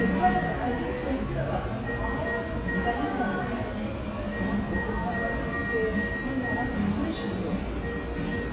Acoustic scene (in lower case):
cafe